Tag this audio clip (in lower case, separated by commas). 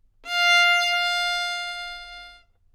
musical instrument, bowed string instrument, music